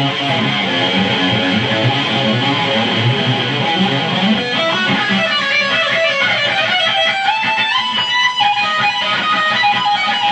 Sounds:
Electric guitar, Plucked string instrument, Guitar, Musical instrument, Music

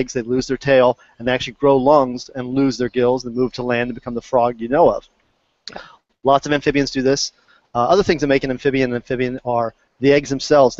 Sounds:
Speech

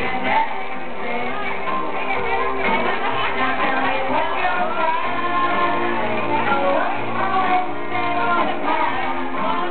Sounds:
Music, Female singing

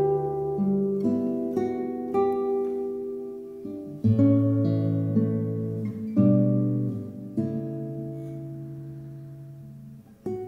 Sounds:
Lullaby, Music

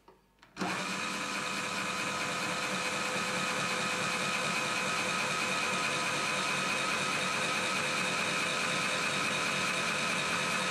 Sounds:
Drill

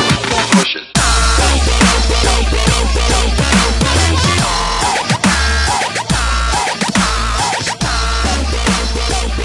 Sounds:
Music, Dubstep

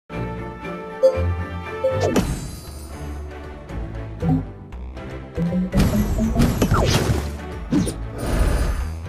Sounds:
Music

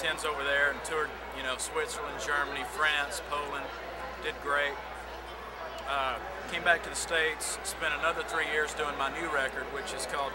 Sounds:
Speech

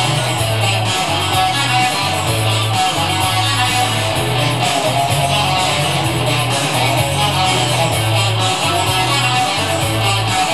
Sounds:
Guitar, Electric guitar, Musical instrument, Music

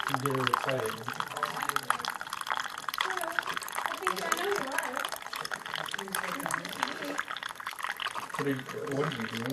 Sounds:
Field recording, Speech

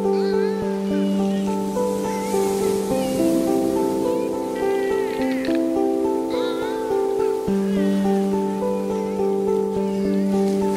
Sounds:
Music

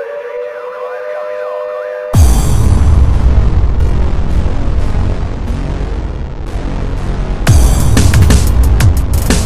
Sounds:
Drum kit, Musical instrument, Music, Drum

